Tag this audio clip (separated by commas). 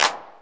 Musical instrument, Clapping, Percussion, Hands, Music